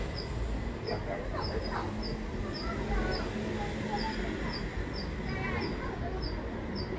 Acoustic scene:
residential area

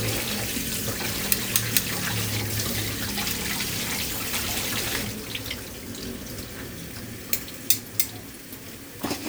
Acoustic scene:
kitchen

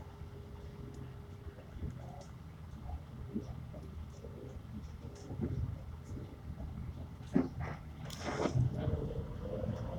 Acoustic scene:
bus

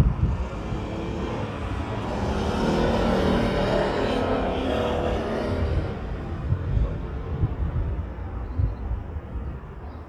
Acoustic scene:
residential area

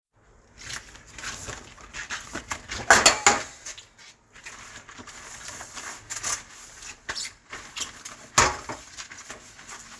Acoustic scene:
kitchen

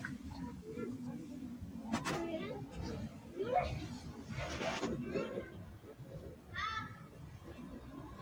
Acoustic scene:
residential area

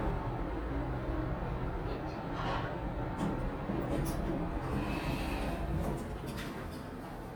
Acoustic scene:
elevator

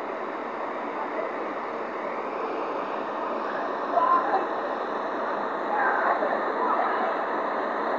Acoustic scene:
street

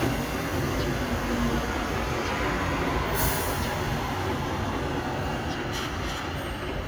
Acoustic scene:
street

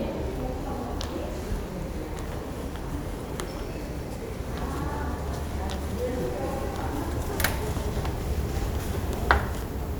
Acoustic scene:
subway station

